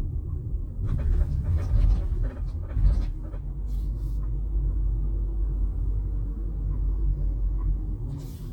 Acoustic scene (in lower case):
car